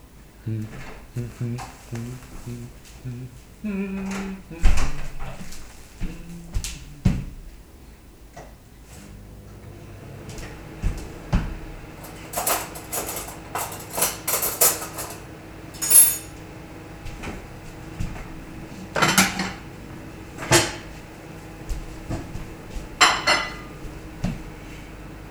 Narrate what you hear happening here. Standing stationary in kitchen, microwave running in background, person handles dishes and cuttlery and then moves to and opens a window.